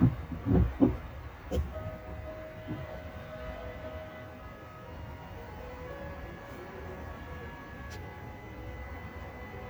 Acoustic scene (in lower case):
car